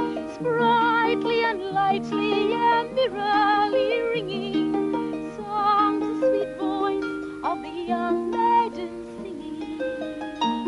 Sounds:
Harp, Pizzicato

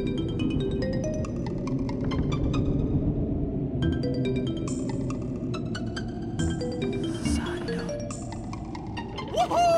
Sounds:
Speech, Music

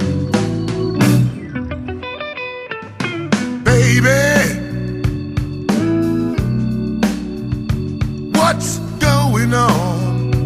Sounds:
Music

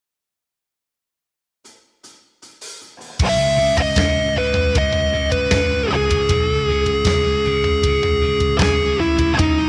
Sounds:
Hi-hat, Music, Snare drum, Plucked string instrument, Guitar, Cymbal, Musical instrument

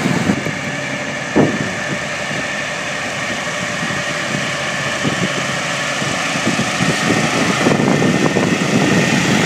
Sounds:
Vehicle

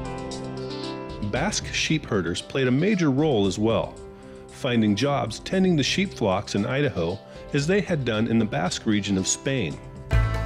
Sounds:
Music, Speech

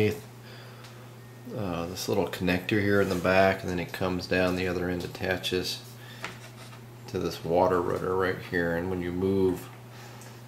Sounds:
Speech

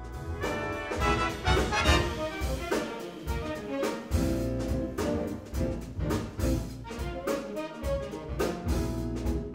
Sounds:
Trombone, Music, Musical instrument

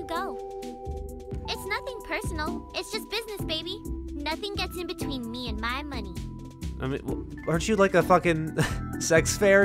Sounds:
Music, Speech

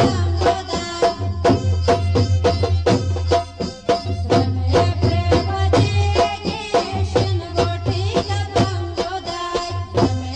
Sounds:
Music

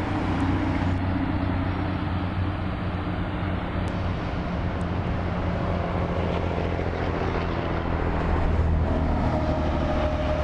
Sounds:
Bus, driving buses

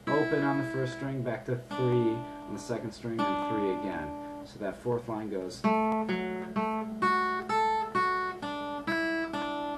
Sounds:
Music, Acoustic guitar, Guitar, Speech, Musical instrument, Plucked string instrument

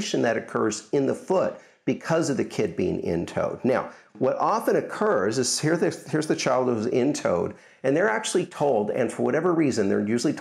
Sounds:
Speech

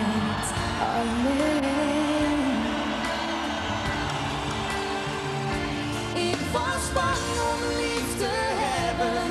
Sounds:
Music

